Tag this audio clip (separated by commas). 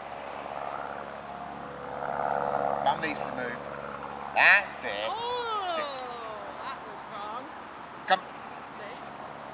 Speech